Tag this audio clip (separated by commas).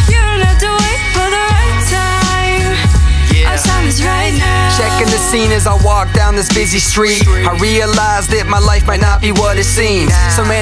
Background music, Music